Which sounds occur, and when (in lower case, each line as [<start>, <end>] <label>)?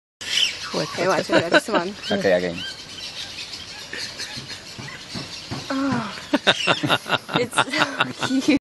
[0.13, 8.54] bird song
[0.14, 8.54] mechanisms
[0.55, 1.89] woman speaking
[0.66, 8.54] conversation
[1.15, 1.77] laughter
[1.27, 1.45] generic impact sounds
[1.81, 1.87] tick
[2.03, 2.18] woman speaking
[2.03, 2.59] man speaking
[3.84, 4.91] laughter
[4.31, 4.50] generic impact sounds
[4.68, 4.84] generic impact sounds
[5.08, 5.30] generic impact sounds
[5.48, 5.67] generic impact sounds
[5.66, 6.12] human voice
[5.88, 6.04] generic impact sounds
[6.11, 6.19] tick
[6.29, 8.54] laughter
[7.26, 8.54] woman speaking